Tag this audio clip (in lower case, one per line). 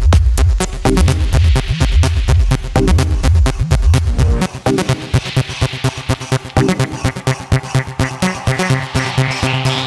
trance music
electronica
electronic music
music